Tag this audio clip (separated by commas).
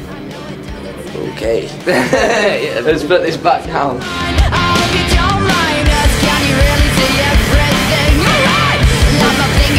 Speech, Music